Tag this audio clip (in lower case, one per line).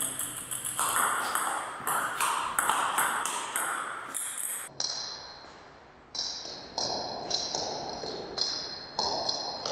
playing table tennis